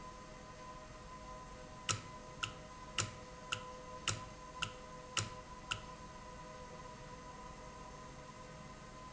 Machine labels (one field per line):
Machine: valve